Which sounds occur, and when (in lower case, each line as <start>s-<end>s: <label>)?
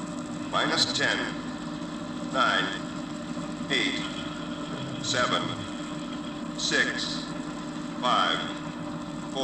0.0s-9.4s: mechanisms
0.5s-1.3s: male speech
2.3s-2.8s: male speech
3.7s-4.1s: male speech
4.7s-5.8s: human sounds
5.0s-5.4s: male speech
6.5s-7.3s: male speech
8.0s-8.6s: male speech